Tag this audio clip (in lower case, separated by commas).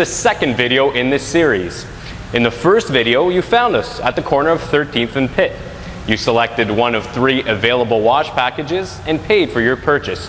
speech